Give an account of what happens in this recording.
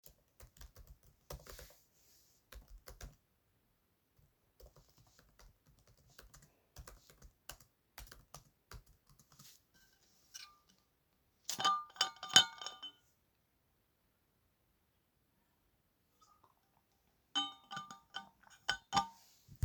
while working from home i drank water from a bottle.